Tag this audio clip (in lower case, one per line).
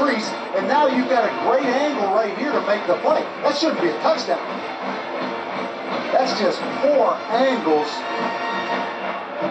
television